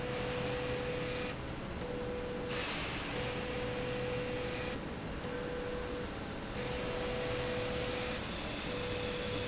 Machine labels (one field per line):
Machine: slide rail